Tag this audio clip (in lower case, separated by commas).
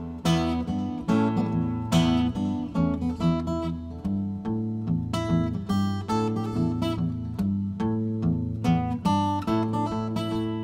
musical instrument, strum, guitar, plucked string instrument, music, acoustic guitar